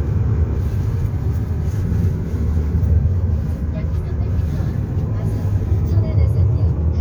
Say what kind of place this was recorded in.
car